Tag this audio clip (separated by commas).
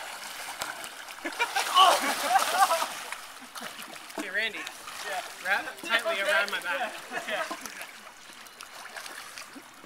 Speech